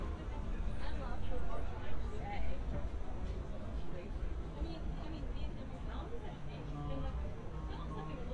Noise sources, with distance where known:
person or small group talking, near

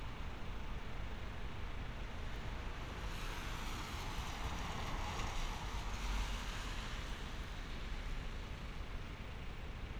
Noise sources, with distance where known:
medium-sounding engine

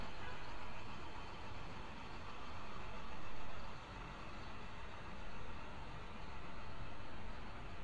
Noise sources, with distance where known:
large-sounding engine, near; car horn

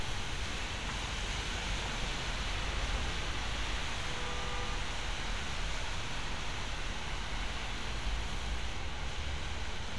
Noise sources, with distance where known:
car horn, far

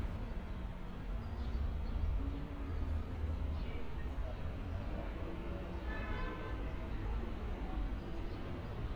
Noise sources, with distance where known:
car horn

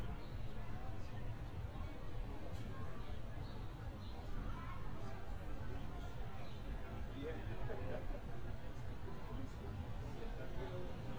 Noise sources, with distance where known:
background noise

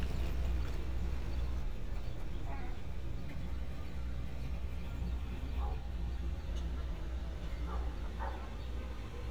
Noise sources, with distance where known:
dog barking or whining

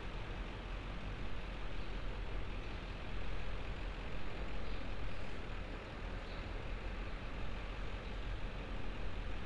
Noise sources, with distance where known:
engine of unclear size

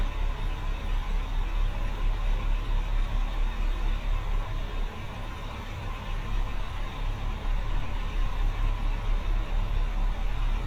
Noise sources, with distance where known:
large-sounding engine, near

